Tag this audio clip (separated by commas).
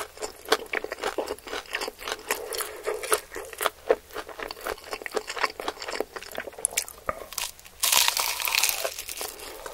people eating noodle